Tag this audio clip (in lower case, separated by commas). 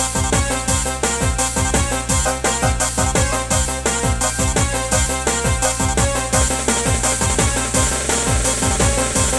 music, theme music